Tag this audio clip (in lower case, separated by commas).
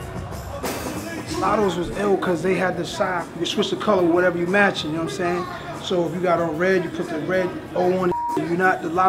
speech, music